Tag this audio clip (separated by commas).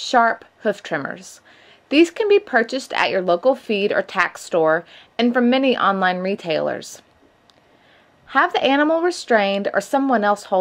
Speech